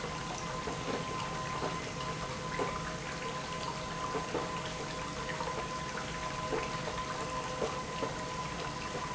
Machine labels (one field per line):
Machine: pump